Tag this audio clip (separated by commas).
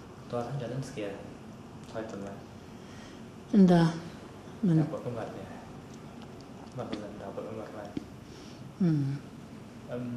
Speech